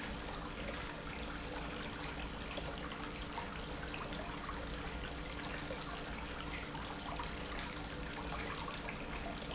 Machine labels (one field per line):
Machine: pump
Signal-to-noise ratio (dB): 0 dB